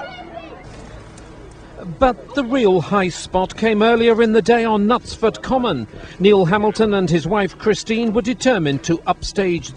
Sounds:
Speech

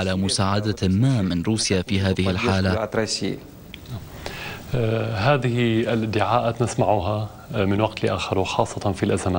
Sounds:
Speech

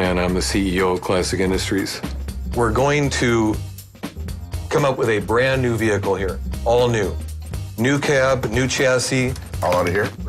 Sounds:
Speech, Music

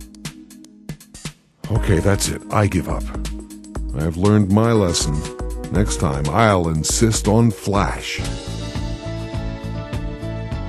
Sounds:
Speech synthesizer

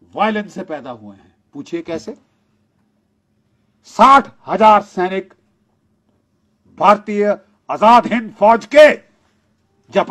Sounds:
Speech, man speaking, Narration

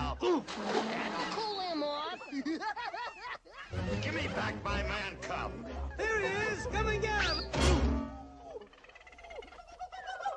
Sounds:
Speech, Music

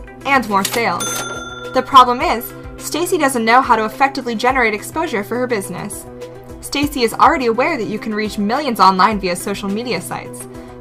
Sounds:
Speech, Music

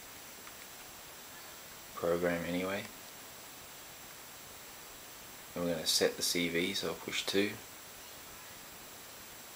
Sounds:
Speech

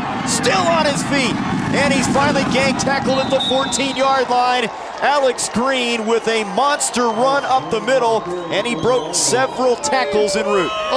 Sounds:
Speech

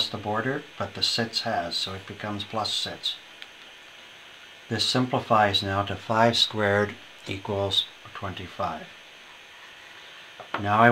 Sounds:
Speech

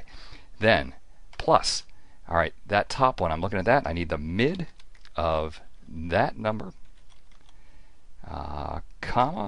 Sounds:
Speech, Typing, Computer keyboard

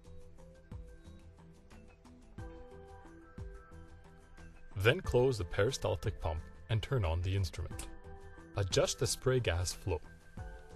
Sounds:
Music, Speech

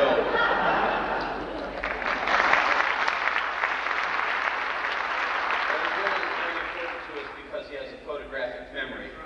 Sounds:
Speech

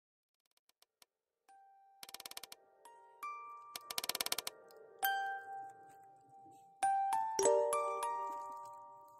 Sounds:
Music

